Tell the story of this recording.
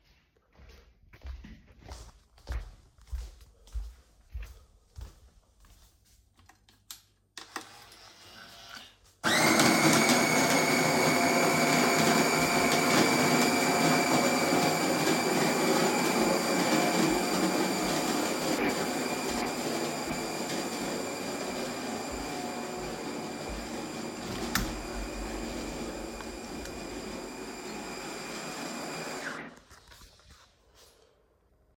I went to the kitchen and started the coffee machine. I went to the window and opened it.